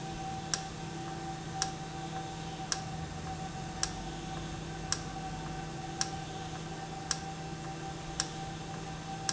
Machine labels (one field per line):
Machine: valve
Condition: normal